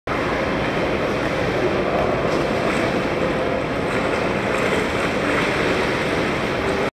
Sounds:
Water vehicle

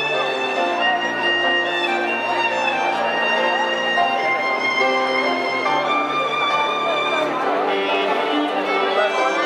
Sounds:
fiddle, Music, Speech, Musical instrument

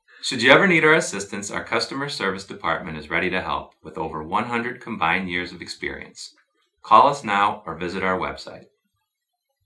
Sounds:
Speech

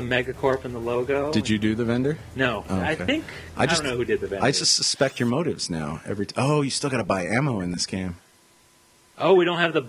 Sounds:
Speech

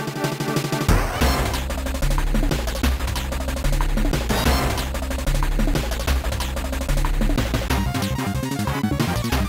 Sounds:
Music

